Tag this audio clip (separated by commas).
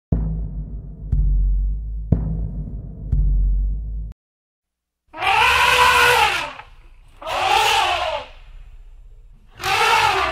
elephant trumpeting